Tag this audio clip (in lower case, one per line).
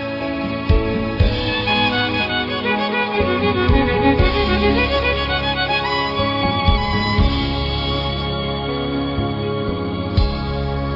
musical instrument
fiddle
music